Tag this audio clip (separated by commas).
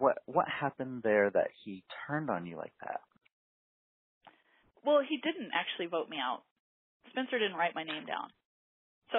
Speech